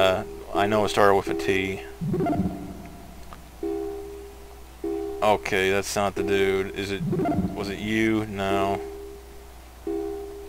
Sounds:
speech

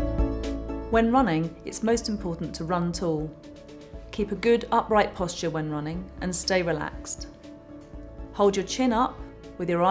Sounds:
inside a small room, speech, music

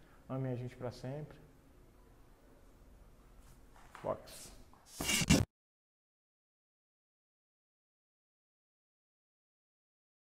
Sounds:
strike lighter

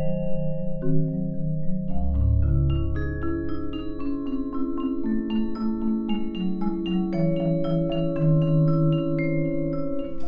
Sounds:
music, vibraphone, percussion

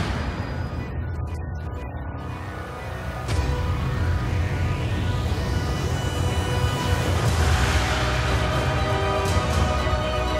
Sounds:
background music, music

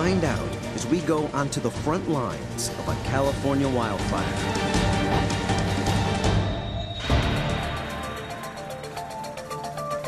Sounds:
music, speech

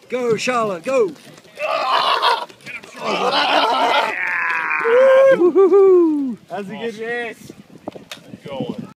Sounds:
run, speech

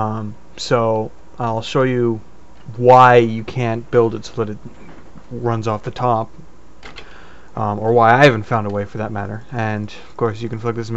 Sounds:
speech

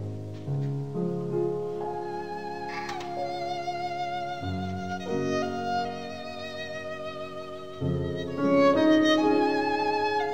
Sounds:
music, musical instrument, fiddle

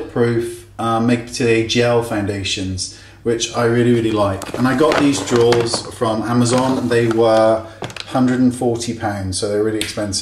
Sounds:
speech

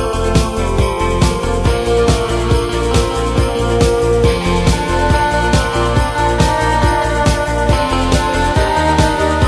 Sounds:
electric guitar, plucked string instrument, guitar, music, strum, musical instrument

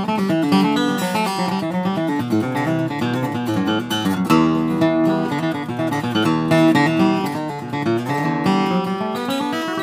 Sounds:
music, plucked string instrument

